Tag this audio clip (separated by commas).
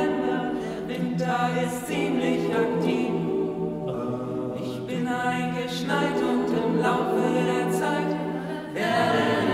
Music